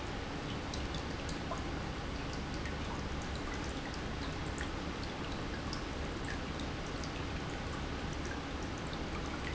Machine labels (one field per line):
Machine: pump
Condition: normal